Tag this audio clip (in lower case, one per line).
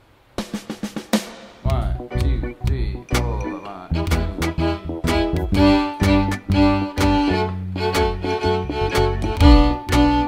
speech
music
musical instrument
fiddle